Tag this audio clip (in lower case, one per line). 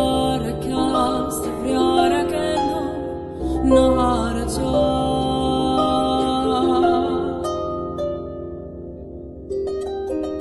harp
playing harp
pizzicato